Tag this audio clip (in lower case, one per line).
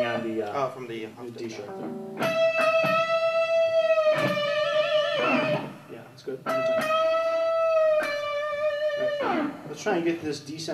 speech
electric guitar
guitar
music
musical instrument